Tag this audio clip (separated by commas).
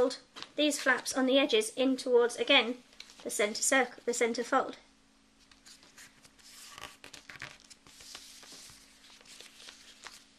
inside a small room, Speech